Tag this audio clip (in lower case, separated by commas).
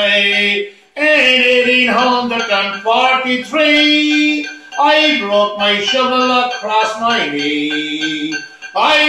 male singing